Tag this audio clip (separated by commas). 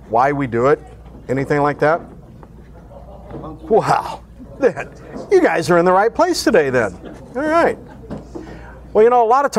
Speech